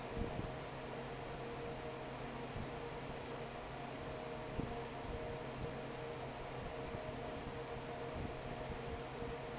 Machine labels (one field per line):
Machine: fan